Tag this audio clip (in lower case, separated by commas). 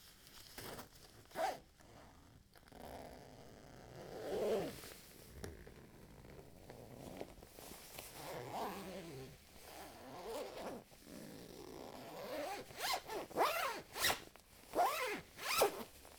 domestic sounds, zipper (clothing)